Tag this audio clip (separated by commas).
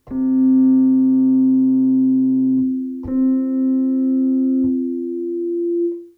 Music, Keyboard (musical), Musical instrument